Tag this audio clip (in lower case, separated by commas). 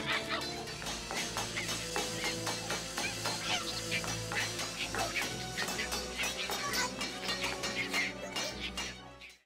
whack